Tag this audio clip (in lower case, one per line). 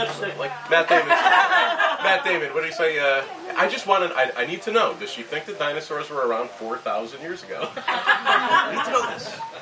speech